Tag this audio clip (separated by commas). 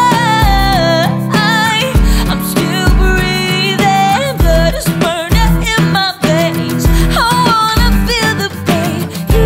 Music